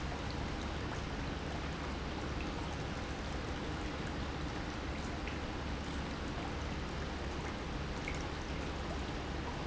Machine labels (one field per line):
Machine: pump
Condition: normal